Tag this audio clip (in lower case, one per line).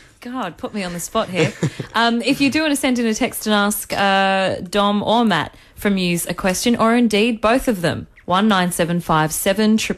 speech